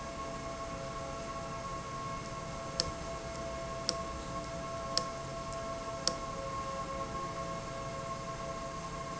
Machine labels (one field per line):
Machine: valve